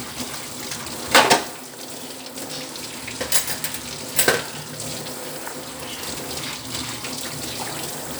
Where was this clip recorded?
in a kitchen